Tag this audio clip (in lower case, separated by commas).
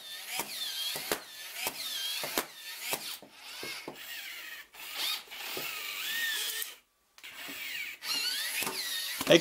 ratchet, mechanisms